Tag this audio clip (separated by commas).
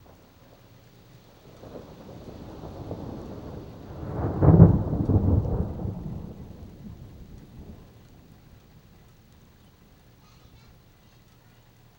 Thunder, Thunderstorm